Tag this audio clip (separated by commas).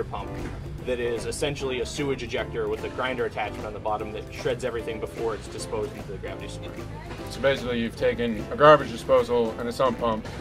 Music, Speech